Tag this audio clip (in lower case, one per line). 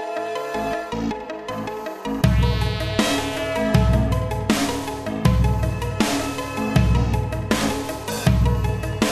music